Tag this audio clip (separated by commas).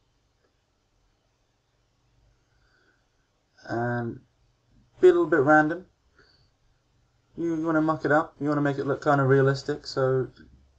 Clicking, Speech